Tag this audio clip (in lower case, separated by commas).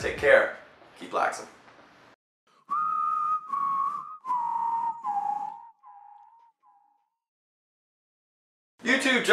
inside a small room, speech, music